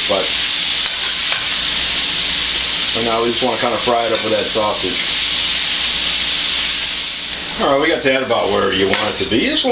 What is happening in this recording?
Food is sizzling and being stirred around as a man is speaking